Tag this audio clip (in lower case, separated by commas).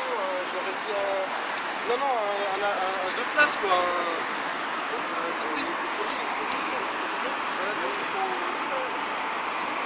speech